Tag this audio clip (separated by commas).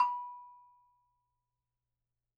Bell